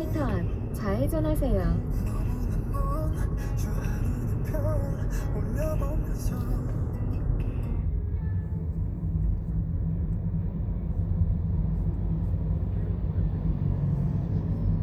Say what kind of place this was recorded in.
car